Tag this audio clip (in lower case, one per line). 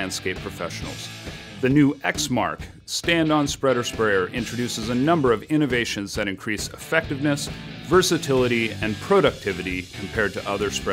speech
music